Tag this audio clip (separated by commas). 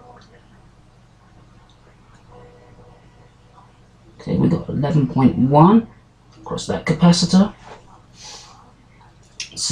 Speech